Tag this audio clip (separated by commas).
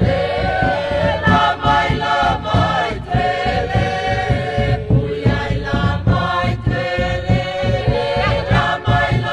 Music